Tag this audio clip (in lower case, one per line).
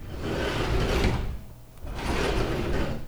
home sounds
door
sliding door